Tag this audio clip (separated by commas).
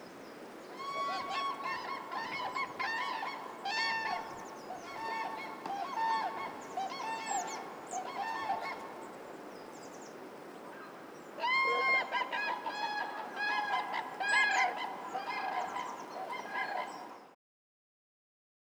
Bird, Animal, Wild animals, Bird vocalization